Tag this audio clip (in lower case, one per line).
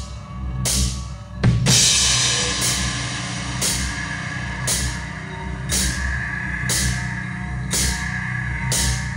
cymbal
hi-hat